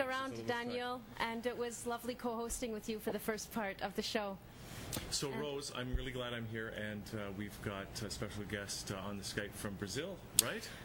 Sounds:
speech

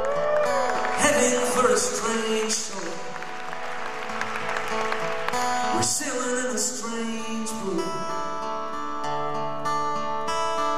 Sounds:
music

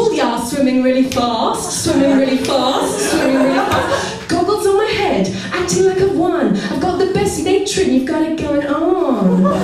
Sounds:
chuckle
speech

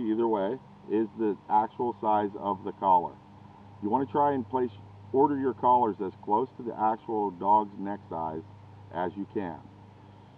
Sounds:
speech

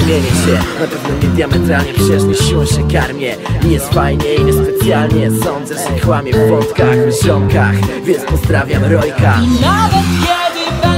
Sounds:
music

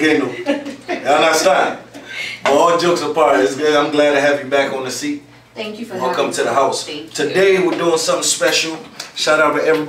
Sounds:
speech

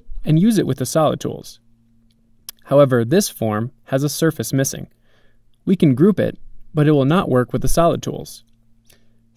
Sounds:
speech

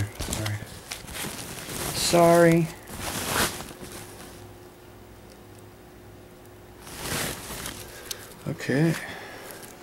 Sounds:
speech

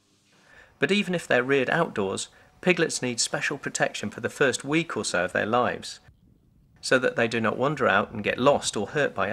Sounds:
speech

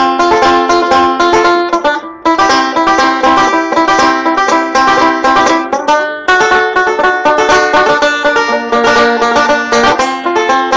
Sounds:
banjo
musical instrument

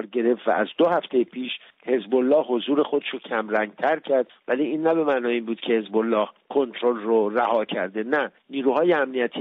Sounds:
speech

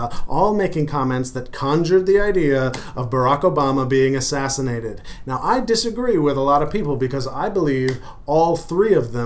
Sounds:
speech

